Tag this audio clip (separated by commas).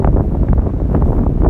Wind